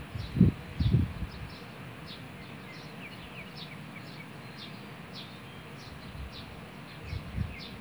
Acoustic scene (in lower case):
park